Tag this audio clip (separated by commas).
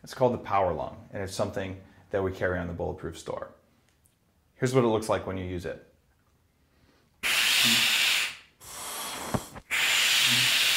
Speech